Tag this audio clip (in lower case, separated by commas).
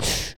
respiratory sounds, breathing